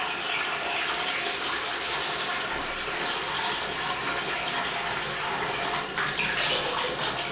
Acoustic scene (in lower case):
restroom